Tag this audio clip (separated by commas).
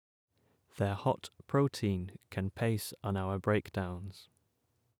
Human voice, Speech